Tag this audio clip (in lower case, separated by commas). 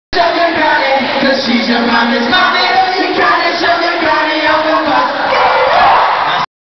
music